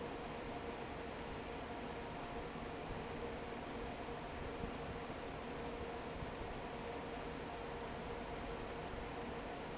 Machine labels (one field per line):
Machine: fan